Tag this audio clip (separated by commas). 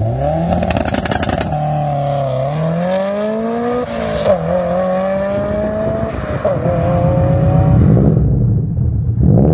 Zipper (clothing)